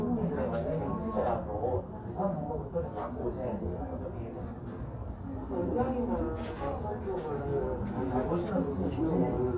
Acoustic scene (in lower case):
crowded indoor space